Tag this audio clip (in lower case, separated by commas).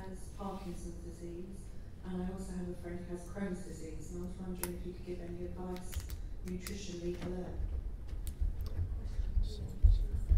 speech